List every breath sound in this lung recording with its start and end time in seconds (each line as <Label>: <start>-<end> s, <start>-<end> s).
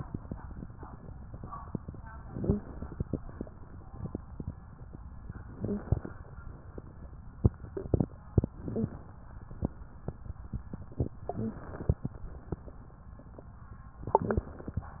Inhalation: 2.28-3.06 s, 5.37-6.19 s, 8.46-9.01 s, 11.29-12.07 s
Wheeze: 2.28-2.64 s, 5.52-5.88 s, 8.60-8.94 s, 11.29-11.63 s